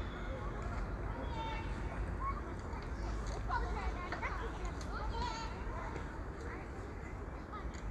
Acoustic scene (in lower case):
park